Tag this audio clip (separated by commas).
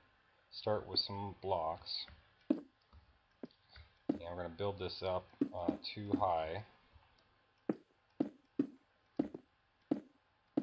Speech